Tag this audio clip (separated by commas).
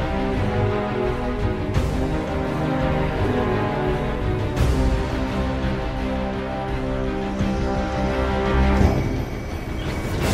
Music